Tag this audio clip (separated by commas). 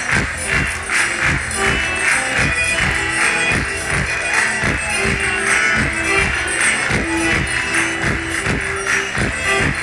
inside a large room or hall, Music